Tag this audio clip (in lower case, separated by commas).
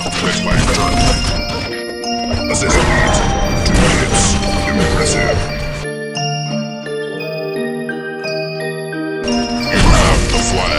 speech, music